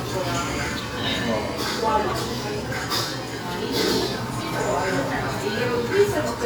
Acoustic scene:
restaurant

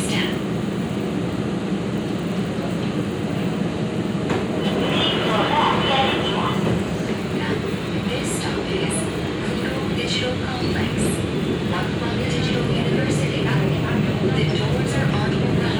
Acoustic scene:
subway train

